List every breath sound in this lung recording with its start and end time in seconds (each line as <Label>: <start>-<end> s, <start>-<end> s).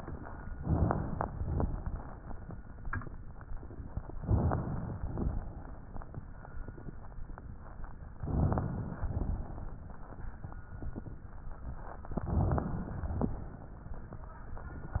Inhalation: 0.61-1.61 s, 4.16-5.07 s, 8.22-9.07 s, 12.16-13.02 s
Exhalation: 1.65-2.33 s, 5.09-5.77 s, 9.11-9.79 s, 13.02-13.68 s
Crackles: 0.61-1.61 s, 1.65-2.33 s, 4.16-5.07 s, 5.09-5.77 s, 8.22-9.07 s, 9.11-9.79 s, 12.16-12.98 s, 13.02-13.68 s